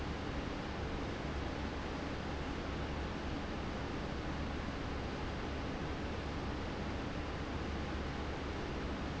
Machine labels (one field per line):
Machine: fan